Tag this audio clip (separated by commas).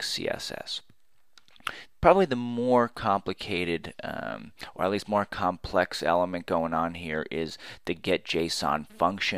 monologue